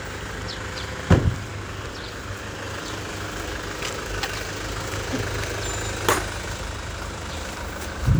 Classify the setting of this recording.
residential area